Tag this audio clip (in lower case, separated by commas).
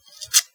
domestic sounds